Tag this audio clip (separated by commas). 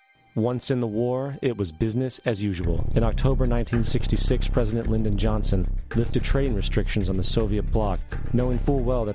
Narration